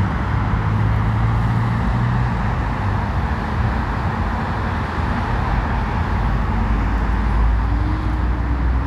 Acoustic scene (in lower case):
street